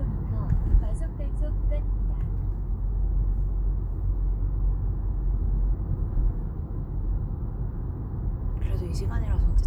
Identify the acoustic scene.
car